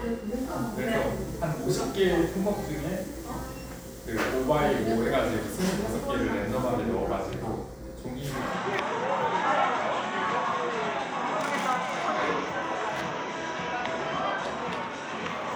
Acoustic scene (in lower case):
cafe